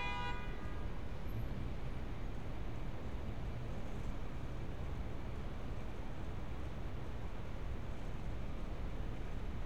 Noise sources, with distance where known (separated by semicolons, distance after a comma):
car horn, near